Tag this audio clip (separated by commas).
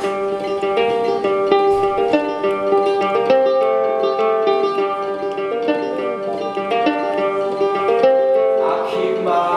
Ukulele, Music, Singing